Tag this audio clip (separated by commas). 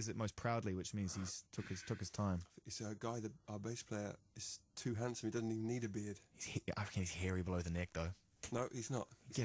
Radio, Speech